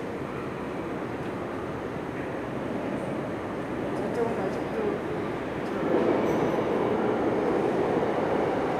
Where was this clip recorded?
in a subway station